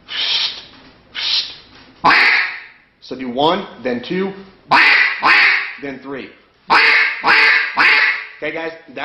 A man speaks and does a duck call several times